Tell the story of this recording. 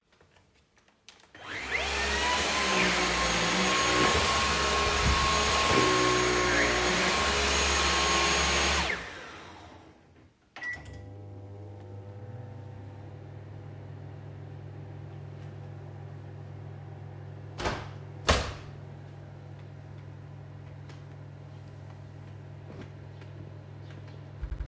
I used the vacuum cleaner, started the microwave and opened the window to get fresh air.